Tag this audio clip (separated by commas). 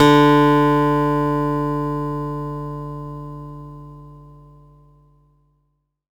Music, Musical instrument, Acoustic guitar, Guitar, Plucked string instrument